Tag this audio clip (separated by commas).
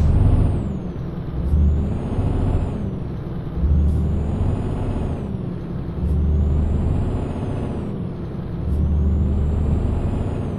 Truck, Vehicle